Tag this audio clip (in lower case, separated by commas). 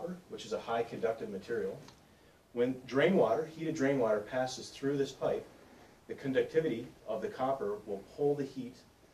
speech